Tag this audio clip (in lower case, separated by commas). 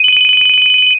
telephone, ringtone, alarm